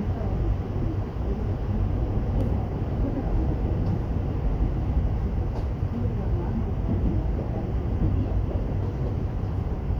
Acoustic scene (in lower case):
subway train